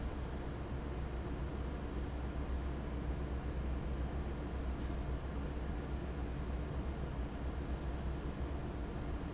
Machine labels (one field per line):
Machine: fan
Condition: abnormal